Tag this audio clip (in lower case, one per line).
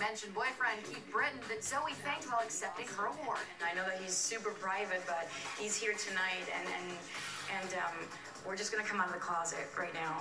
speech
music